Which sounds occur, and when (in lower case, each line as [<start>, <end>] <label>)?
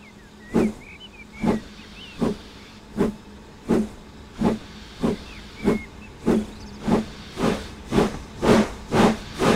[0.00, 2.76] chirp
[0.00, 9.55] engine
[0.00, 9.55] video game sound
[0.46, 0.69] hiss
[1.24, 2.80] steam
[1.38, 1.64] hiss
[2.14, 2.34] hiss
[2.91, 3.11] hiss
[3.62, 3.83] hiss
[4.30, 5.85] steam
[4.35, 4.54] hiss
[4.94, 5.13] hiss
[5.13, 6.12] chirp
[5.58, 5.81] hiss
[6.23, 6.39] hiss
[6.46, 6.79] chirp
[6.71, 7.77] steam
[6.79, 6.99] hiss
[7.36, 7.61] hiss
[7.86, 8.12] hiss
[8.40, 8.73] hiss
[8.91, 9.14] hiss
[9.05, 9.55] steam
[9.35, 9.55] hiss